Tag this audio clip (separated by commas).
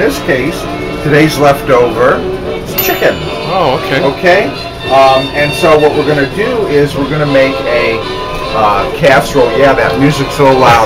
Music, Speech